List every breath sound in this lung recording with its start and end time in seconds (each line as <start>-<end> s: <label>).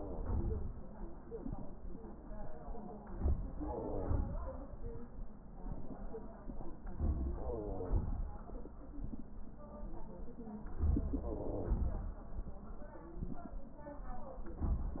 3.03-3.55 s: inhalation
3.55-4.63 s: exhalation
3.55-4.63 s: wheeze
6.88-7.44 s: inhalation
7.43-8.22 s: wheeze
7.43-8.62 s: exhalation
11.24-12.18 s: wheeze